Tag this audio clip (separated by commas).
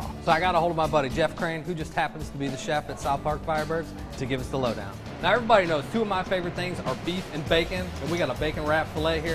Music, Speech